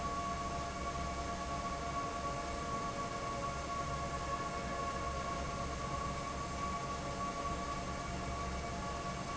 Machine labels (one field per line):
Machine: fan